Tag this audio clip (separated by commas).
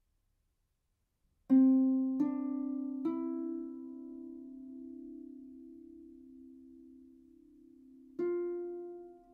playing harp